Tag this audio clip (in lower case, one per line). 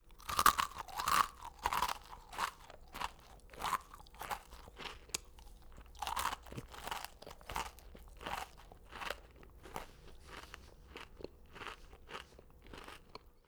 mastication